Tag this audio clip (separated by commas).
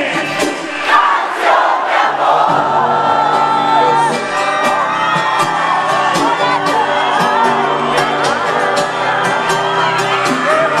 Music, Speech